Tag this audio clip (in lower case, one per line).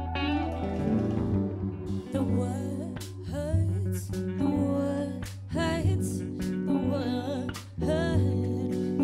music